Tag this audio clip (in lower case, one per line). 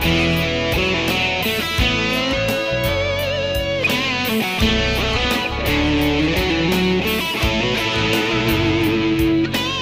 music